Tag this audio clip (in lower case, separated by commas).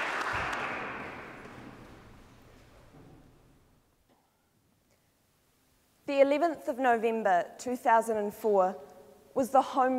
monologue, speech, female speech